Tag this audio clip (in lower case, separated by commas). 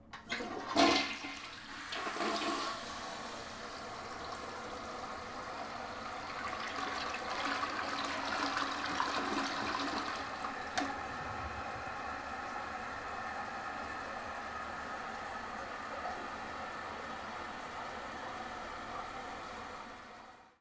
home sounds, toilet flush